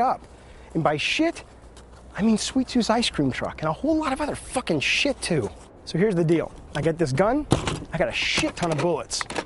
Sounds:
speech

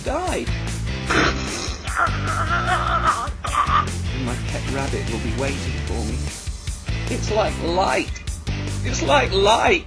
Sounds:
music, speech, snicker

